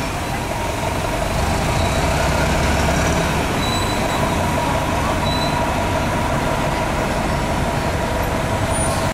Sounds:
vehicle
vroom

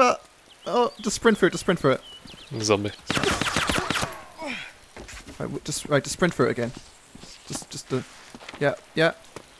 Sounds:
walk
speech

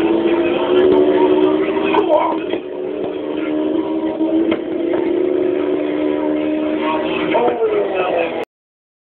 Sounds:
vehicle
speech
car

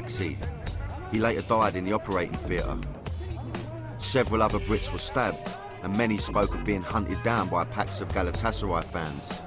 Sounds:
speech
music

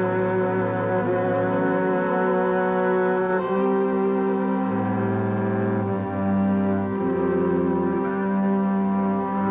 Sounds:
music
inside a large room or hall

